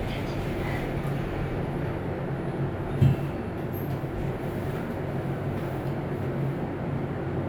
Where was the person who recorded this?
in an elevator